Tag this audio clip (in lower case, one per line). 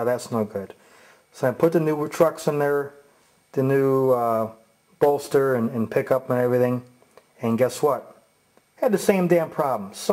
speech